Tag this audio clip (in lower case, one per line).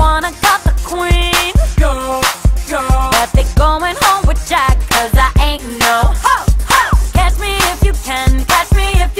music